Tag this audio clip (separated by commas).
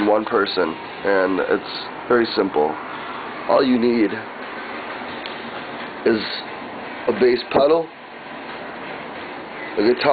Speech